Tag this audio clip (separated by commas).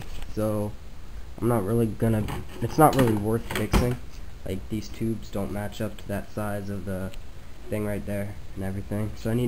Speech